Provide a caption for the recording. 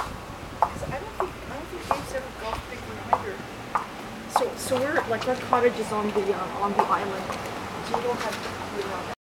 A clock ticks, people speak